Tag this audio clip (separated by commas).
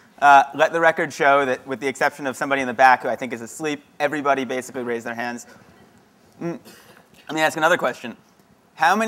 Speech